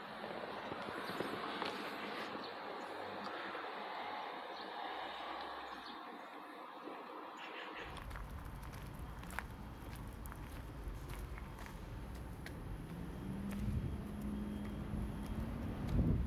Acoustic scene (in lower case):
residential area